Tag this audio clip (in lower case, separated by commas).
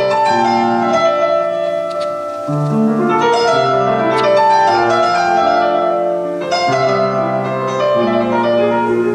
flamenco, music